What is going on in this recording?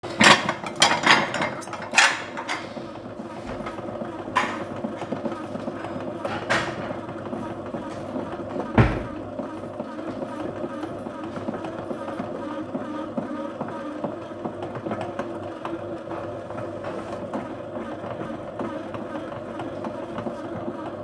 I took the dishes, opened the cupboard door and put the dishes inside. Meanwhile, there was a bread baking machine running in the background.